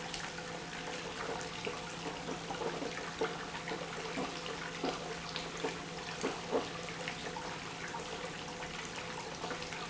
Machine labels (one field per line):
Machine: pump